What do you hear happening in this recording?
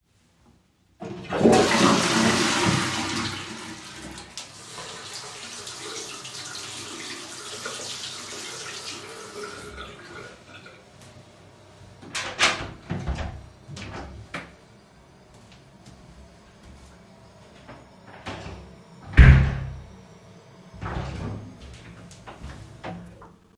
I flushed the toilet, turned on the sink, washed my hands, and turned off the water. I then opened the door, walked out, and closed the door behind me.